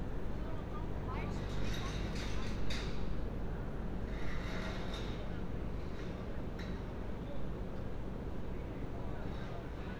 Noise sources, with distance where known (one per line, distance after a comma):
person or small group talking, far